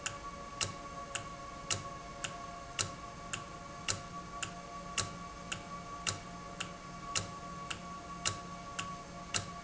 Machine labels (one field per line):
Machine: valve